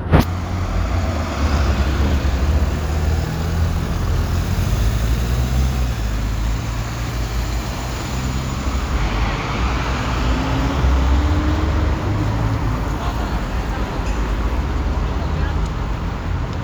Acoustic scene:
street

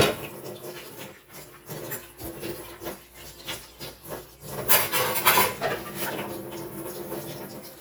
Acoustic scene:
kitchen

